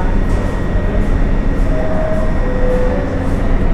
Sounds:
Rail transport, Vehicle, metro

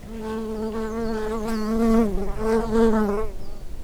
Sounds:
Animal, Wild animals, Buzz, Insect

